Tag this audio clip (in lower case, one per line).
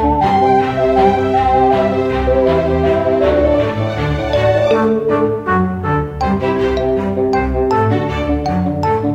music
video game music